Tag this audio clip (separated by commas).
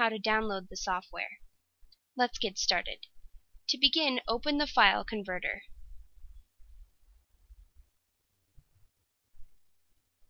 Speech